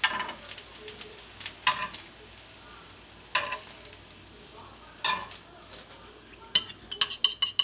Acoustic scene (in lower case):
kitchen